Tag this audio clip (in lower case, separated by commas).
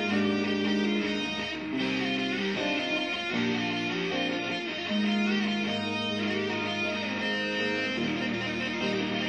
electric guitar, bass guitar, music, musical instrument, guitar, plucked string instrument